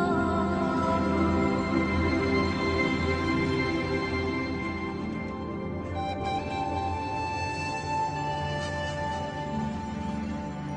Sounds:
Music

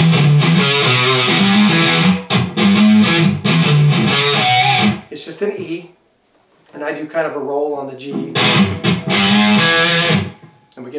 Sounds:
Speech, Musical instrument, Electric guitar, Strum, Music, Guitar

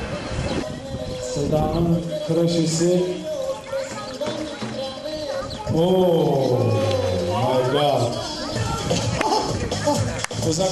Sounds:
Animal, Bird, Speech, Music

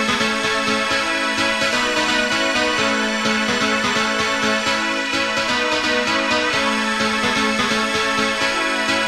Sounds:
Music

